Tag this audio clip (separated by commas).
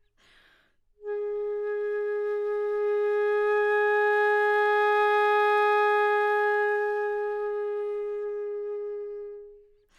Musical instrument, Music, Wind instrument